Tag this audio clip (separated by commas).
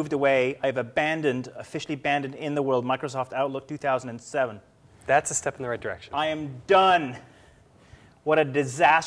Speech